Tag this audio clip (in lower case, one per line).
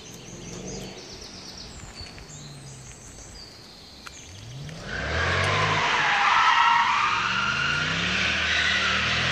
car
outside, rural or natural
vehicle
race car